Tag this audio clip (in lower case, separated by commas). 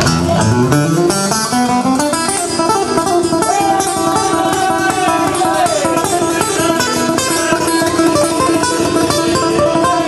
musical instrument, music, speech, guitar, strum, plucked string instrument